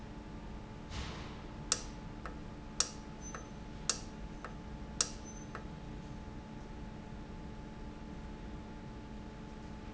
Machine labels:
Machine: valve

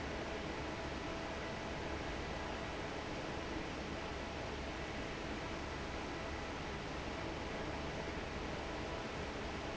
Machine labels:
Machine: fan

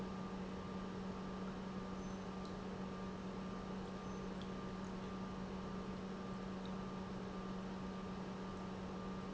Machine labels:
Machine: pump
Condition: normal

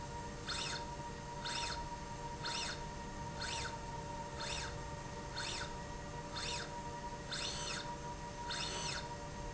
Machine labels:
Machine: slide rail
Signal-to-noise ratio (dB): 0 dB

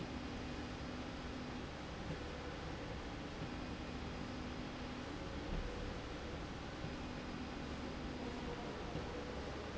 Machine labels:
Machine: slide rail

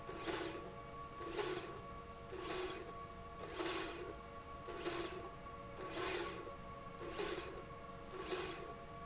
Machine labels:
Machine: slide rail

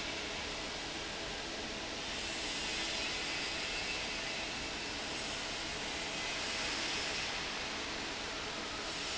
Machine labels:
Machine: fan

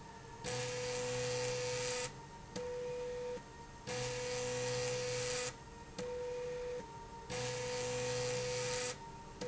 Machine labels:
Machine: slide rail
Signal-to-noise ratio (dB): 6 dB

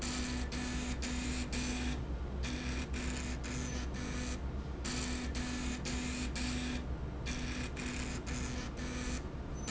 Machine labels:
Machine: slide rail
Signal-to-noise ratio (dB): -6 dB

